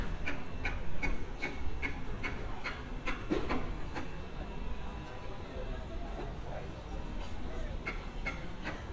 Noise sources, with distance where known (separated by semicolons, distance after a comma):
person or small group talking, far